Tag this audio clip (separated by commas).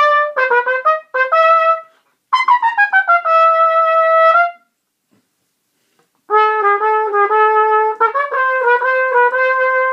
playing cornet